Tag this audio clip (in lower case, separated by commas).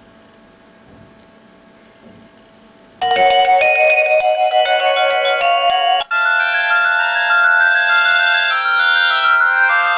music